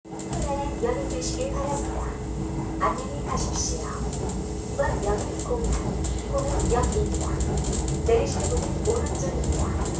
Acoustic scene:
subway train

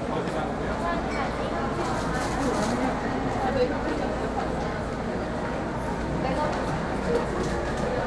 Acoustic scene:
cafe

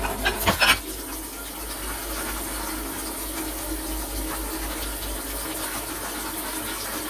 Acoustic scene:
kitchen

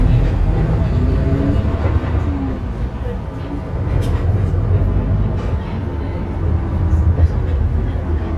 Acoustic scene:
bus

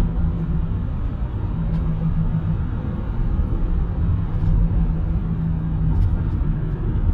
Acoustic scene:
car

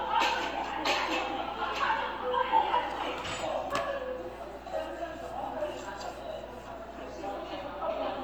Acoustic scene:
cafe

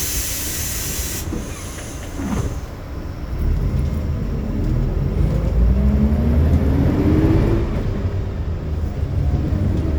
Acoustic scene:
bus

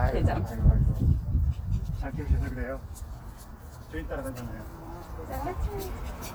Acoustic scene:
residential area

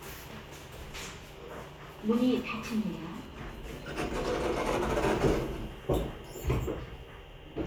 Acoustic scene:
elevator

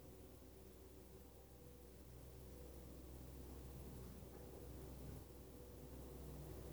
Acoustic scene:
elevator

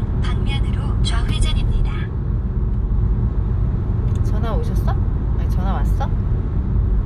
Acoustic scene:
car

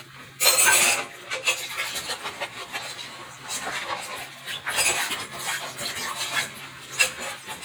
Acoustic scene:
kitchen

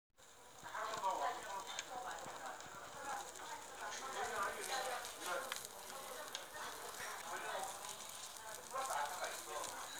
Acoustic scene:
restaurant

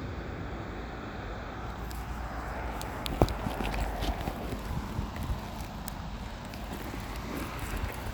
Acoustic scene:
street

